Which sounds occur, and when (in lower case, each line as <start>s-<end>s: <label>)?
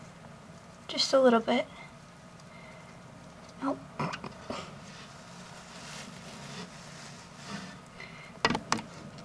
0.0s-9.2s: mechanisms
0.2s-0.2s: tick
0.9s-1.7s: female speech
2.3s-2.4s: tick
2.4s-3.1s: breathing
2.7s-2.8s: tick
3.0s-3.0s: tick
3.2s-3.5s: generic impact sounds
3.6s-3.8s: human sounds
4.0s-4.7s: generic impact sounds
4.8s-7.8s: surface contact
8.0s-8.4s: breathing
8.4s-8.8s: generic impact sounds